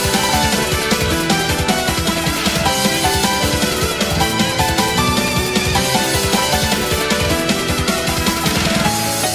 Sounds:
music

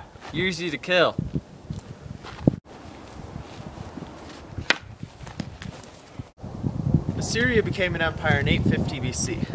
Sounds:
speech

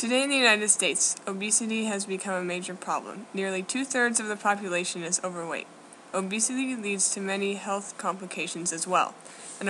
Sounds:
speech

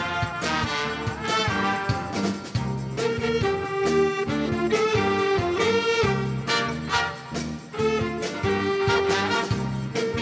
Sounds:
music

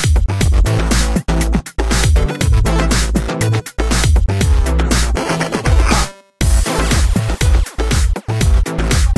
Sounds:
electronica, music

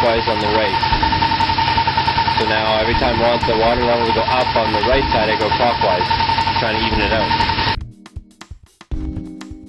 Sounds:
vehicle

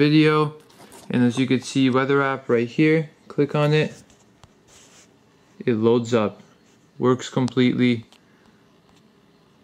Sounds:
speech

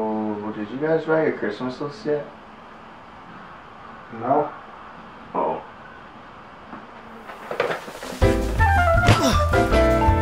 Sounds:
music, inside a small room, speech

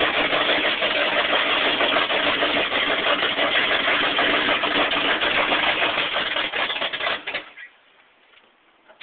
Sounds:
truck, vehicle

